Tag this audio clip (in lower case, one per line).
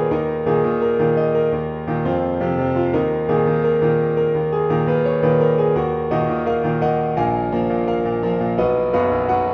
music